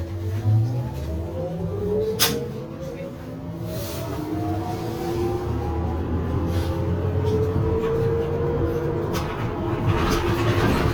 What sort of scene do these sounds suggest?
bus